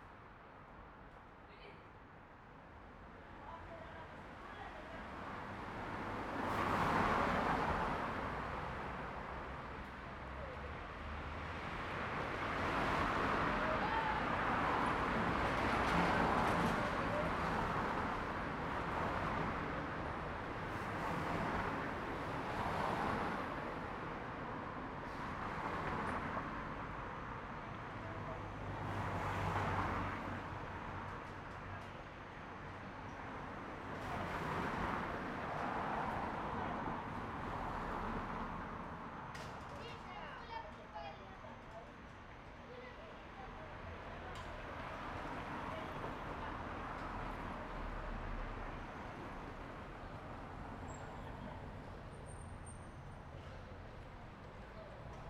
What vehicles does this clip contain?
car